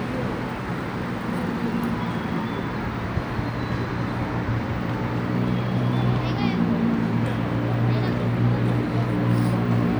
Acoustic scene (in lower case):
residential area